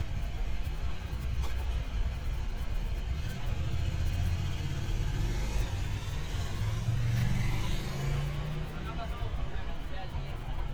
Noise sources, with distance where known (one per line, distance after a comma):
engine of unclear size, near
person or small group talking, near